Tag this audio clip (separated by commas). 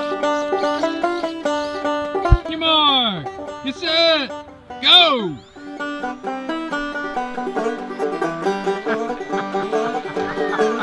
Speech, Banjo, Music